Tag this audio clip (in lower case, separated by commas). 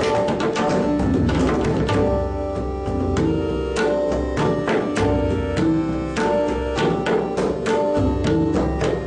tabla, percussion, music, musical instrument